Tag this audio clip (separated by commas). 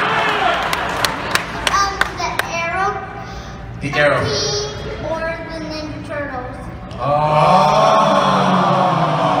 Speech